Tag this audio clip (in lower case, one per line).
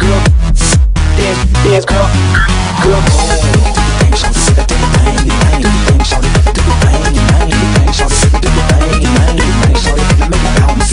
dance music